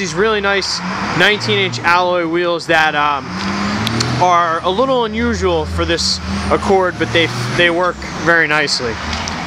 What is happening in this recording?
Someone talks about really nice wheels that are unusual